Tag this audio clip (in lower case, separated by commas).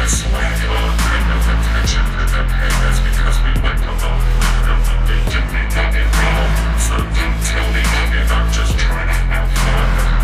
music